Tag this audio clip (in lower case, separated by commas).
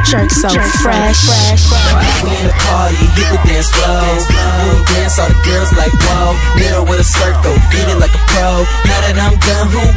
music